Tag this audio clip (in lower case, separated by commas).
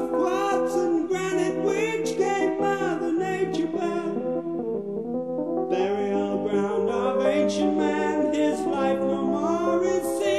music